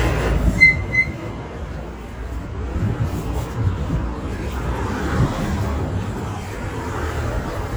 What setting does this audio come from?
residential area